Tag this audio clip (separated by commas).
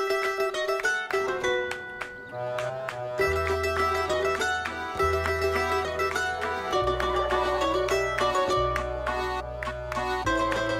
Music, Mandolin